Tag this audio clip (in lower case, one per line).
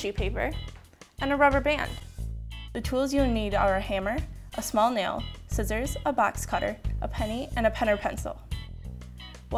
speech
music